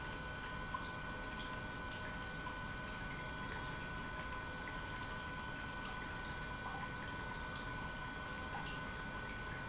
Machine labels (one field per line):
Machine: pump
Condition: normal